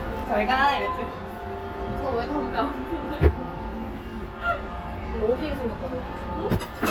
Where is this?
in a restaurant